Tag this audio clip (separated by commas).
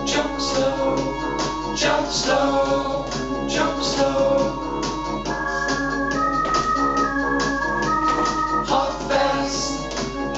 Music